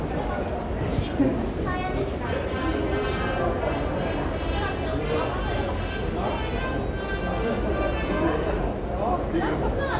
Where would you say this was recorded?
in a subway station